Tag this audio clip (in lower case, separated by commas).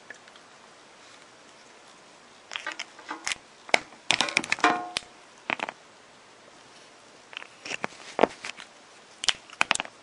inside a small room